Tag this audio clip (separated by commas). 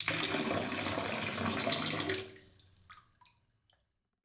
Bathtub (filling or washing), Domestic sounds, Liquid